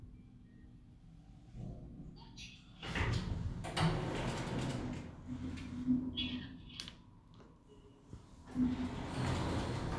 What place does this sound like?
elevator